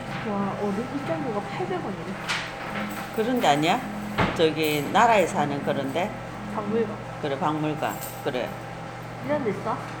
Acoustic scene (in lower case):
cafe